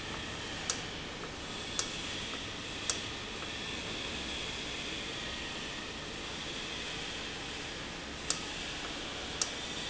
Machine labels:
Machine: valve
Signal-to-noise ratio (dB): -6 dB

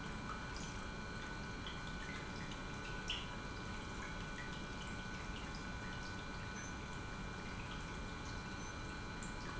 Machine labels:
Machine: pump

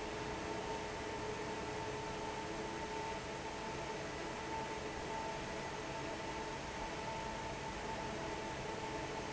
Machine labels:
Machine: fan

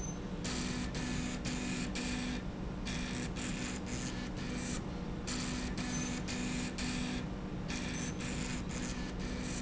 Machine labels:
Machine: slide rail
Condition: abnormal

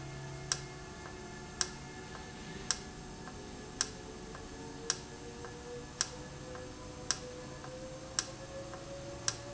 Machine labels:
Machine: valve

